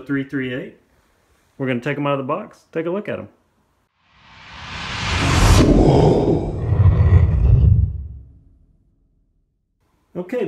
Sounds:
Speech

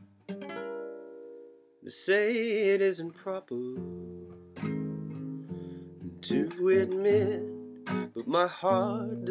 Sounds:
Male singing, Music

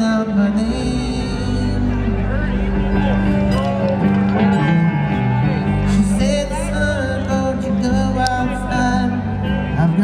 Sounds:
Speech, Music

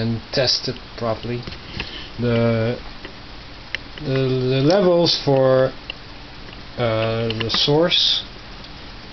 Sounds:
Speech

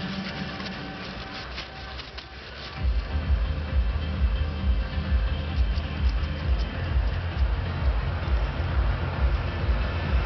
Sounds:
Music

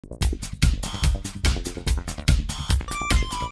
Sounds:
Music

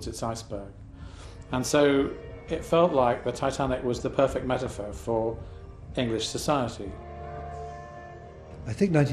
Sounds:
Speech, Music

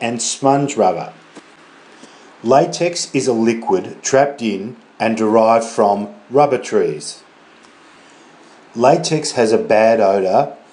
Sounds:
Speech

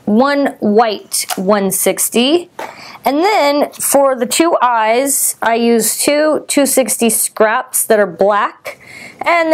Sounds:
Speech

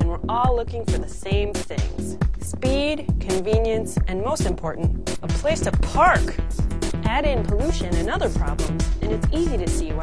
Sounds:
Music, Speech

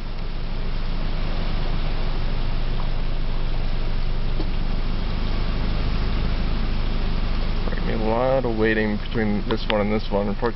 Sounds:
Speech

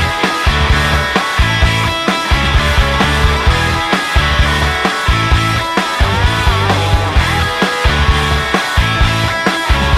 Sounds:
Music

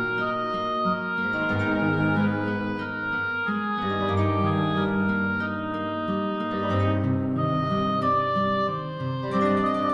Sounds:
Music

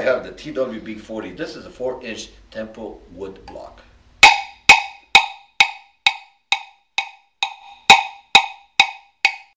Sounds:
Percussion, Wood block, Drum

